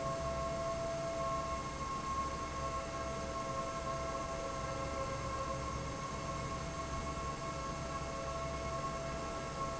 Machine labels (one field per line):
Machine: fan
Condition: normal